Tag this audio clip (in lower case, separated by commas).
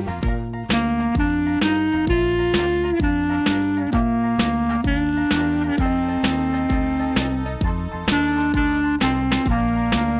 playing clarinet